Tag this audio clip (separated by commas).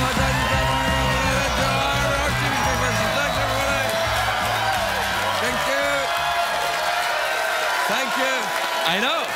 Speech, monologue, Music